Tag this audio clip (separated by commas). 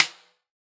Drum, Percussion, Music, Snare drum, Musical instrument